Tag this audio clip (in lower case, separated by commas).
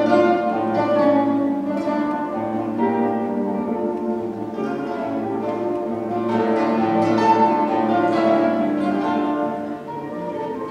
music, acoustic guitar, plucked string instrument, musical instrument, guitar